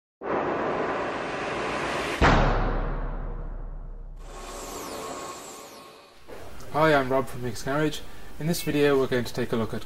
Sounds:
Speech

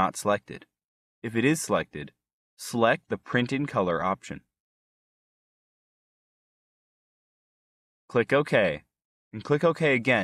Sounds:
Speech synthesizer

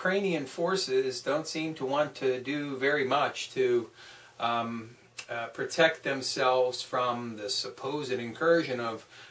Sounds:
Speech

